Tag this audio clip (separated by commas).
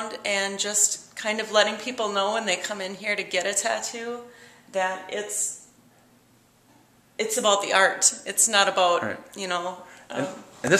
Speech, inside a small room